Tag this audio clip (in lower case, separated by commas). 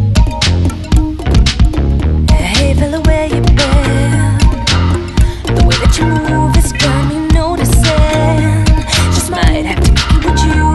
music, blues